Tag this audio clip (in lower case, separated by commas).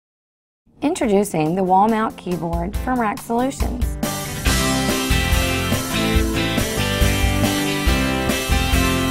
speech, music